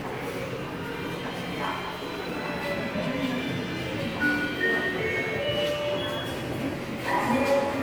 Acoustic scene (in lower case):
subway station